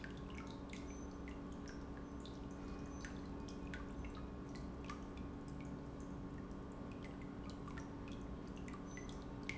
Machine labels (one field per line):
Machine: pump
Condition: normal